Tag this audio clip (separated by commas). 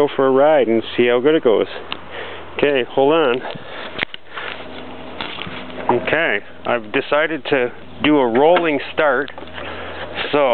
Speech